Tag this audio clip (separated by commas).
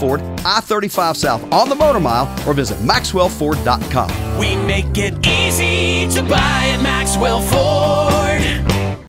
Music, Speech